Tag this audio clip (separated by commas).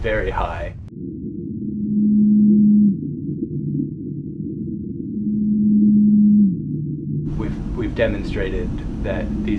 Speech, outside, rural or natural